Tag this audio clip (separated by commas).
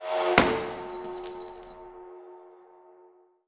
Shatter, Glass